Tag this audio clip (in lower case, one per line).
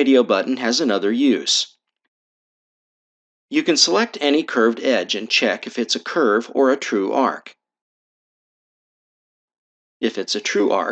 speech